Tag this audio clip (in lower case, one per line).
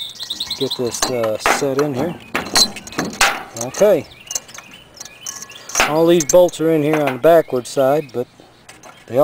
speech